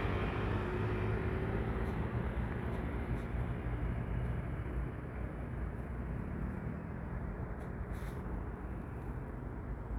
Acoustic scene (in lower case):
street